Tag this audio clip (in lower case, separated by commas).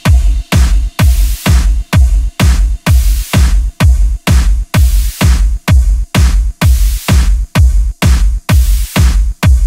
exciting music, music